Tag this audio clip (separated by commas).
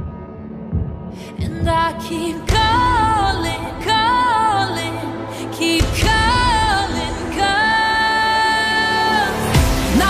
Music